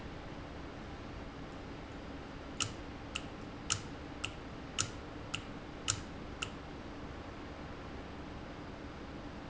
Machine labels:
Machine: valve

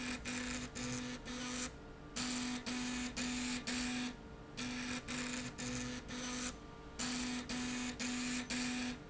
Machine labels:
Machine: slide rail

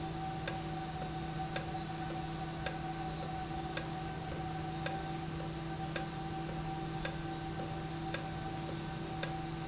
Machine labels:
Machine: valve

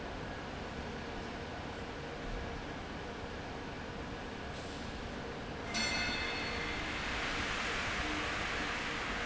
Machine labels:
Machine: fan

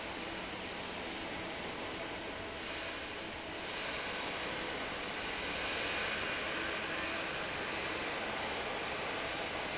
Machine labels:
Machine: fan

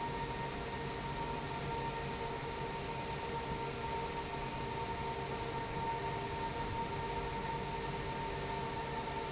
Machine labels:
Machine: fan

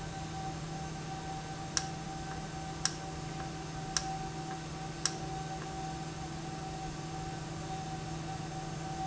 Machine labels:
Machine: valve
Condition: normal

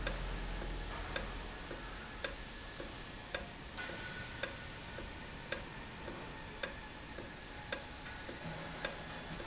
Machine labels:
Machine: valve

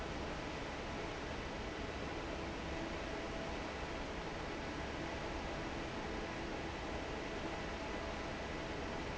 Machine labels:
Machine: fan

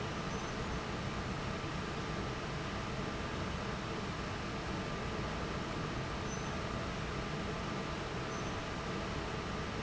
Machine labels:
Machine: fan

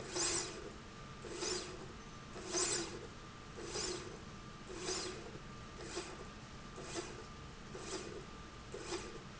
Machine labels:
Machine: slide rail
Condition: normal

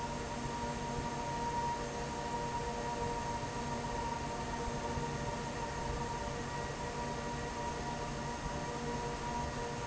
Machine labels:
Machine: fan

